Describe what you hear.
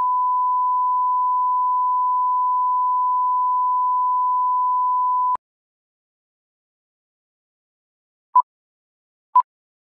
Long beep followed by quick beep